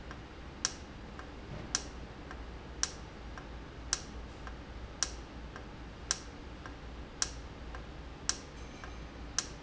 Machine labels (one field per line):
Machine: valve